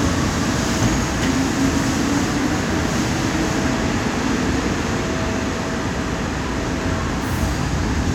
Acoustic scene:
subway station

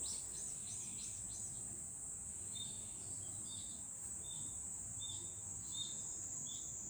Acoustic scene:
park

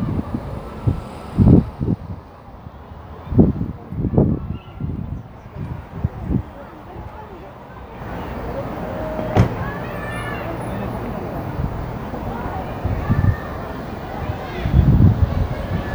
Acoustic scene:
residential area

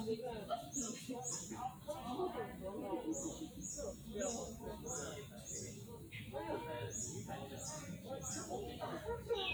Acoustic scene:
park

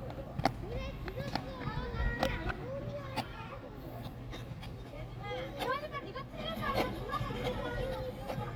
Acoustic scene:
park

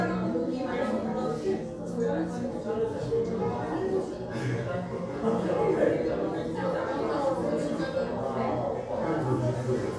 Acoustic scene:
crowded indoor space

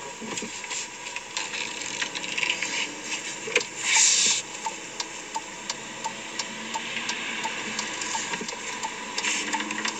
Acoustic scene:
car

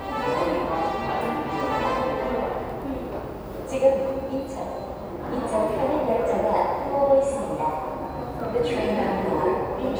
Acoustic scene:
subway station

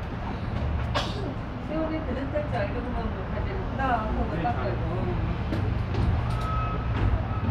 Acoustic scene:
residential area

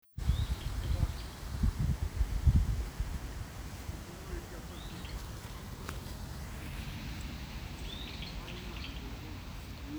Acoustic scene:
park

